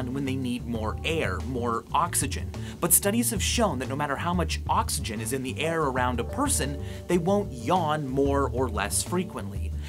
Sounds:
speech

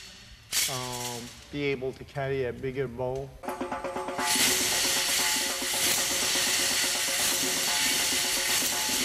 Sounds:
inside a large room or hall
music
speech

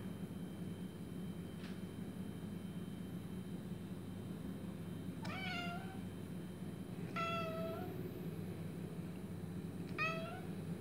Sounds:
cat meowing

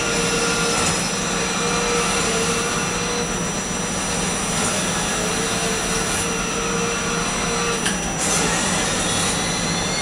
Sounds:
car

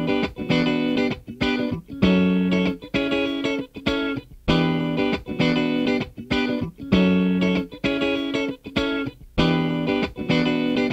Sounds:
electric guitar

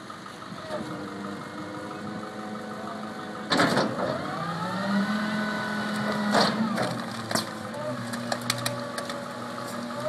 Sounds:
vehicle

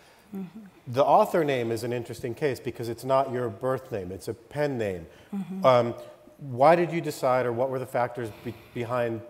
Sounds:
speech

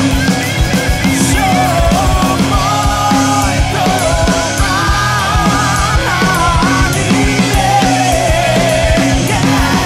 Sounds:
singing
music
punk rock

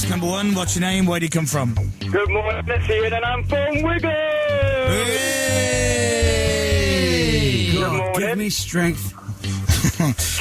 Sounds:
speech
music
radio

